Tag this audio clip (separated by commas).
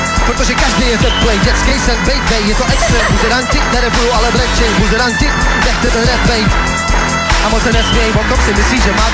Music